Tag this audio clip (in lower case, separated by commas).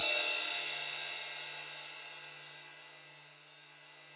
music, cymbal, percussion, musical instrument, crash cymbal